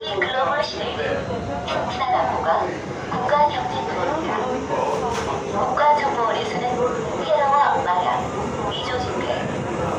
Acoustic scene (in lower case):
subway train